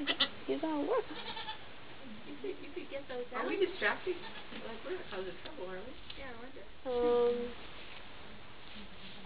Sheep are bleating and people are talking